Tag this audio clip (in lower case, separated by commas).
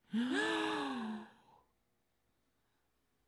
respiratory sounds, gasp, breathing